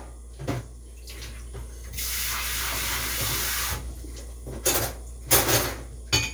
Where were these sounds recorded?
in a kitchen